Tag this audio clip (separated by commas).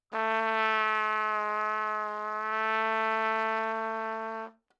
Trumpet, Music, Musical instrument, Brass instrument